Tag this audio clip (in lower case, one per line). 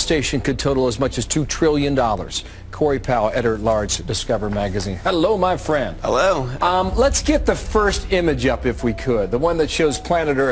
speech